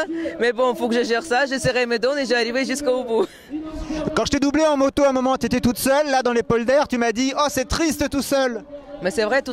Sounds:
Speech

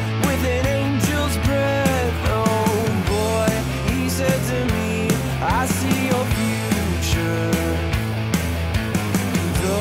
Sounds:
Blues, Music

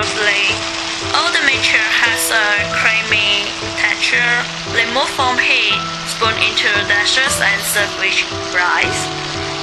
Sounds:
Frying (food)

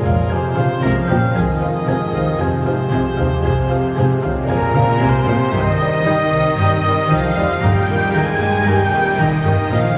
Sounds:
Background music

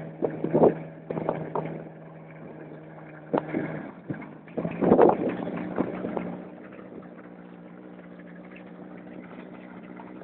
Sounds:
sailing ship

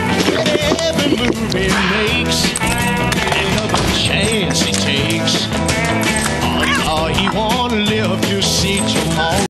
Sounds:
Domestic animals, Music, Animal

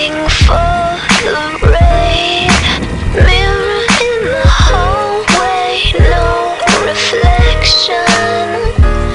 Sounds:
Music, Rain on surface

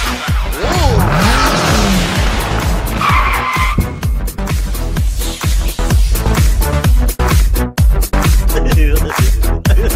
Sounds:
Speech, Music

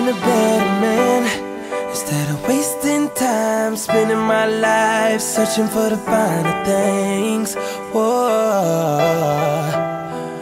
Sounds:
Music

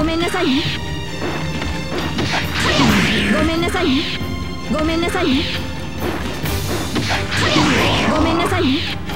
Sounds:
Speech, Music

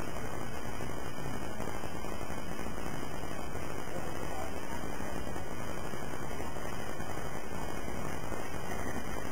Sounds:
Vehicle

